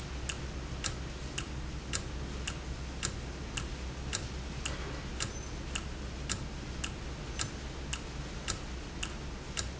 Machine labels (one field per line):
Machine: valve